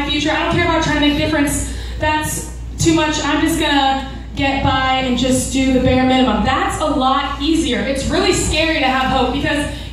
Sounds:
woman speaking, Speech, monologue

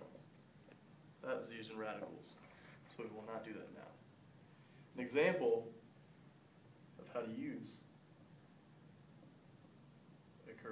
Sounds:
Speech

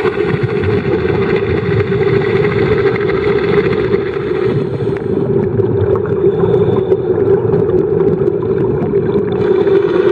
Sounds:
scuba diving

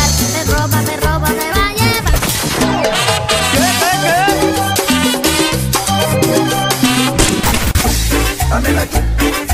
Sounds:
Music, Disco

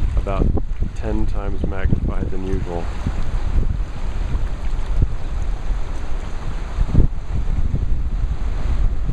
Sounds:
Ocean, Speech

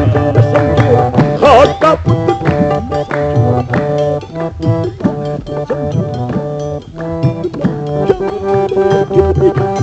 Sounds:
Music, Middle Eastern music

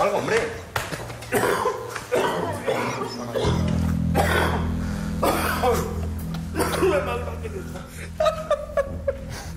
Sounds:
people coughing

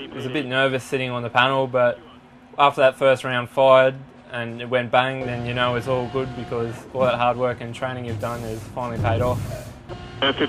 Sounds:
Speech

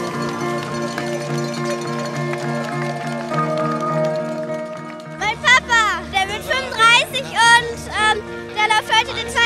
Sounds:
Speech, outside, urban or man-made, Music

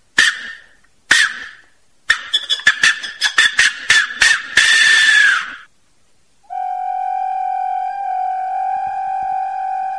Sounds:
people whistling

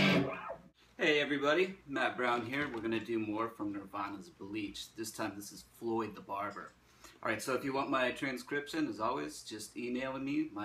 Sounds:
Guitar, Speech, Music, Musical instrument

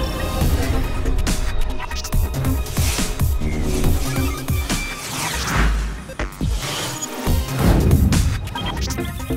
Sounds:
Music

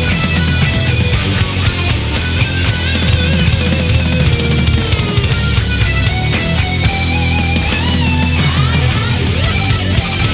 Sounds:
Music

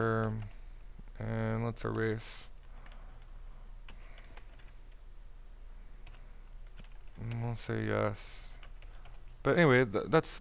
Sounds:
Speech

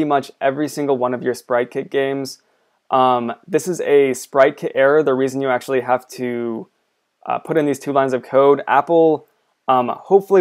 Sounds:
Speech

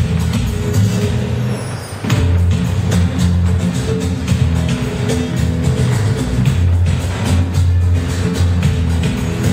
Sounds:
Music

